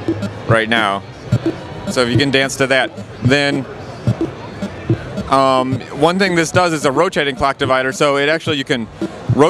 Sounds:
speech

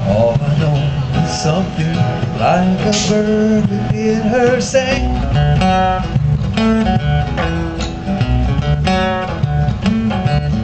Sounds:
music

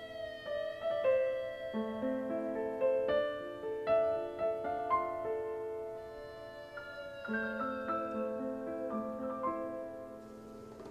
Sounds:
piano, singing, music

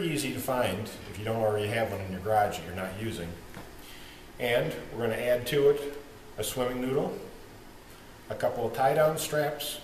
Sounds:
speech

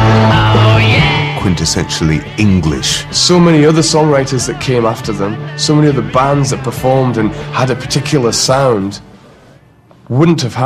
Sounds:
speech, music

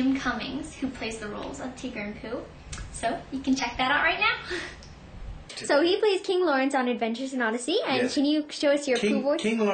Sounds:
speech

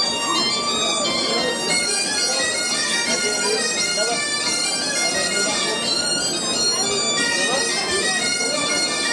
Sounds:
music, speech

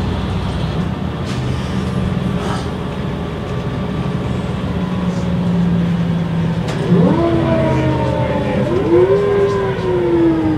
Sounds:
speech, vehicle, bus

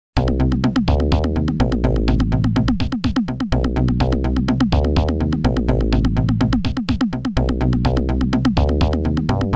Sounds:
music, drum machine

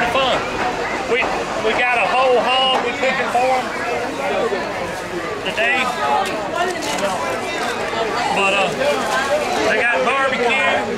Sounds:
crowd, speech

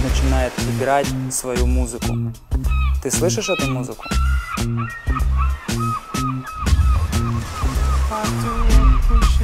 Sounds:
music, speech

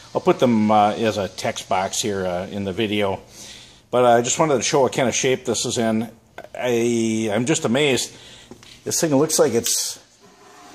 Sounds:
speech

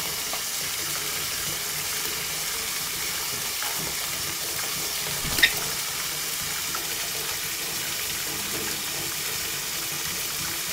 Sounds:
bird

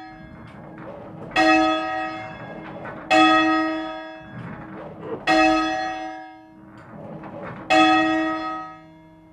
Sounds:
music

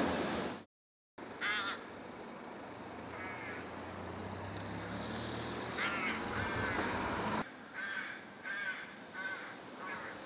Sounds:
crow cawing

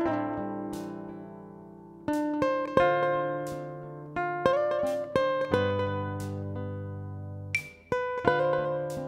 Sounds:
guitar, music

